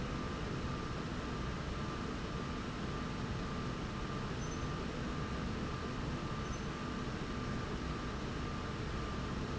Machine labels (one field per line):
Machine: slide rail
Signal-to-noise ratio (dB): -6 dB